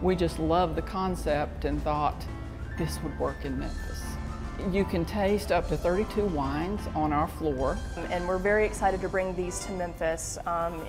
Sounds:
music
speech

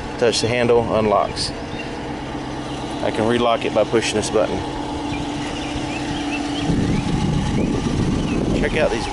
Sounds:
car
vehicle

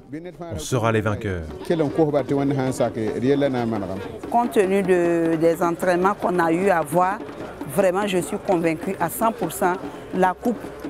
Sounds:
music
speech

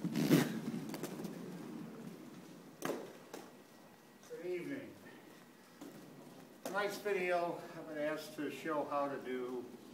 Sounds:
speech

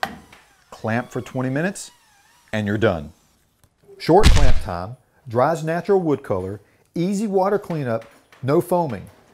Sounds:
speech

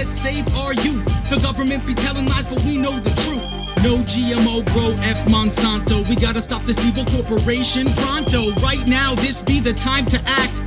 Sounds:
music

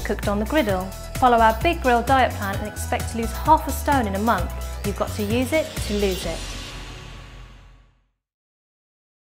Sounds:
music
speech

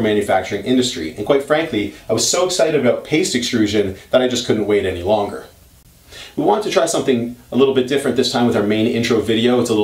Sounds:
speech

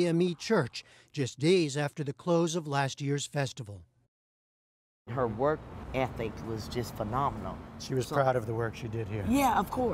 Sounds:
speech

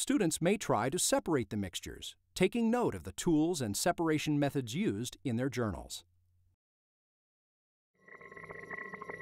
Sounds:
speech

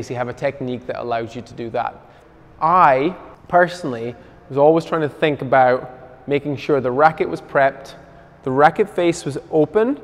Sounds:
playing squash

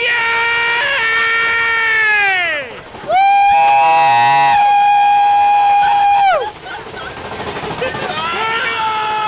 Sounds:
speech

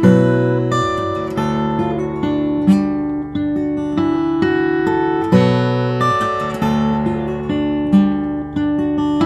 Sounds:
music
strum
guitar
plucked string instrument
musical instrument
acoustic guitar

